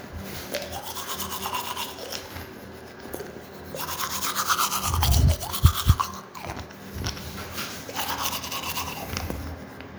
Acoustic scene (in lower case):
restroom